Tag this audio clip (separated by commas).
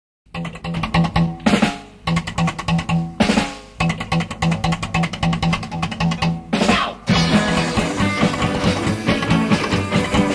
Percussion, Rimshot, Drum kit, Snare drum, Drum, Drum roll